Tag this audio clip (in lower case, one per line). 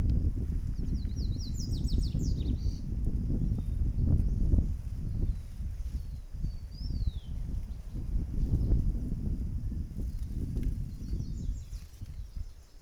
animal
bird
wind
wild animals